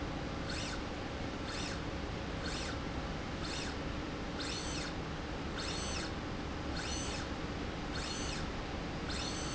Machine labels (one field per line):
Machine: slide rail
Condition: normal